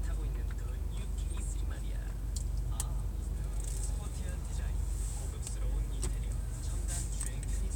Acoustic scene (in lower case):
car